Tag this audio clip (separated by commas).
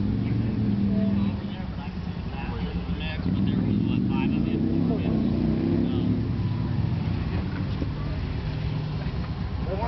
Speech